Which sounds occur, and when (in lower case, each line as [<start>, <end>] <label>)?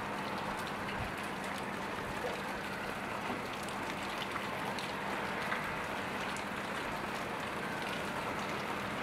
[0.00, 9.02] car
[0.00, 9.02] rain
[0.00, 9.02] wind